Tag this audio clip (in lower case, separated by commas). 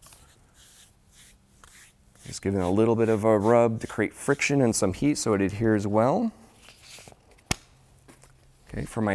inside a small room, speech